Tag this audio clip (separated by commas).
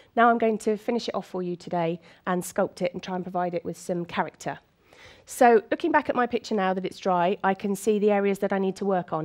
Speech